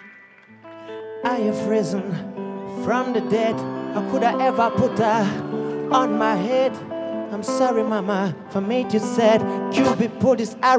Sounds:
Music

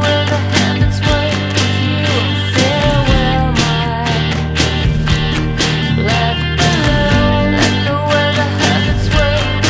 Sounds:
Independent music, Music

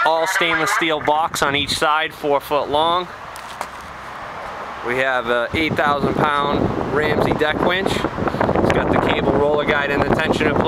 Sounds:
Speech

